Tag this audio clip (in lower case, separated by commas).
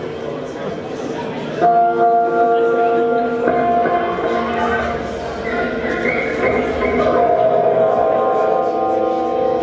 music, speech